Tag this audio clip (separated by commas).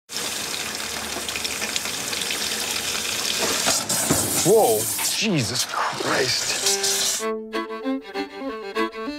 inside a small room, Speech, Music